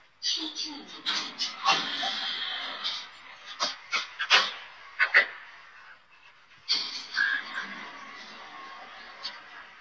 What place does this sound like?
elevator